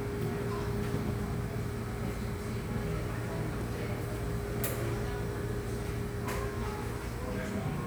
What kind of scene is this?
cafe